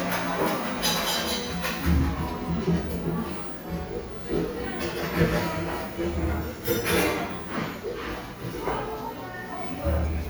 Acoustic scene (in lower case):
cafe